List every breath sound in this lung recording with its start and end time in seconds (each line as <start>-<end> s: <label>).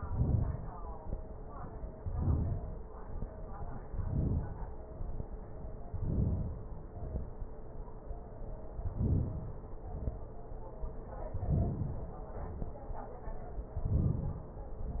0.00-1.10 s: inhalation
1.86-2.89 s: inhalation
2.90-3.96 s: exhalation
3.97-4.91 s: inhalation
4.92-5.86 s: exhalation
5.87-6.88 s: inhalation
6.89-7.99 s: exhalation
8.71-9.81 s: inhalation
9.82-11.09 s: exhalation
11.02-12.28 s: inhalation
12.28-13.54 s: exhalation
12.28-13.57 s: inhalation
13.63-14.58 s: inhalation
14.60-15.00 s: exhalation